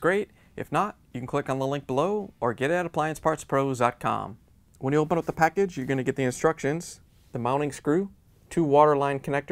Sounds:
speech

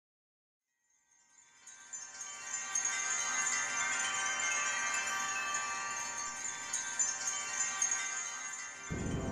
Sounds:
chime
wind chime

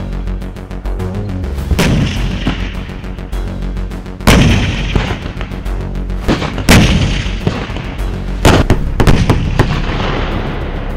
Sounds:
firing cannon

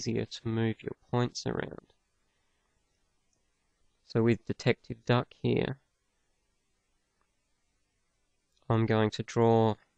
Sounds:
speech

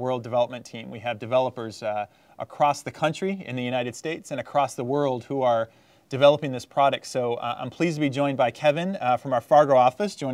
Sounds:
speech

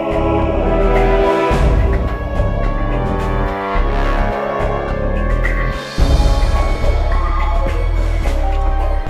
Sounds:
music

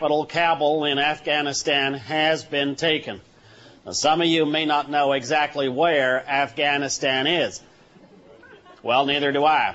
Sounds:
speech

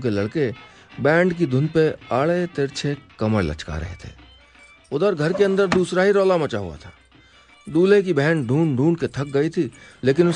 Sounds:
music
speech

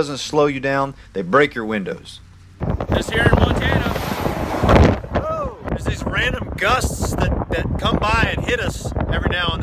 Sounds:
outside, rural or natural
speech

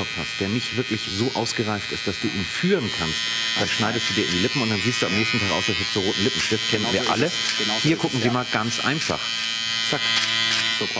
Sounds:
electric razor shaving

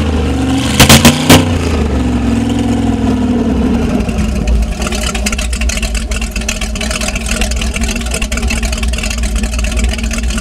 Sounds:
heavy engine (low frequency)

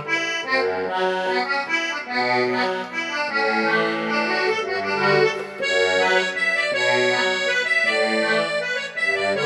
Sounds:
music

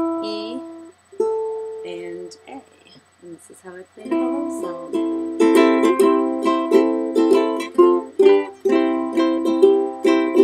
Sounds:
music
speech

